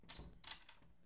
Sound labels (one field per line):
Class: door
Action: opening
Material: wooden